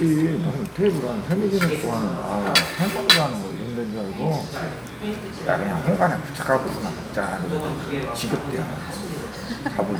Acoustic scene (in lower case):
crowded indoor space